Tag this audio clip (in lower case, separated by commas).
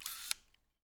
mechanisms, camera